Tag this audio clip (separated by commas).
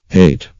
Human voice, Male speech, Speech